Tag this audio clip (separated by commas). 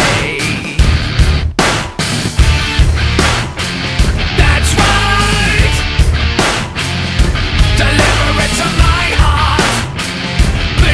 Music